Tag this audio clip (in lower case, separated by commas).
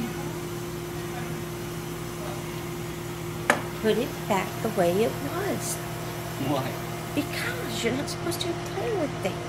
inside a small room, speech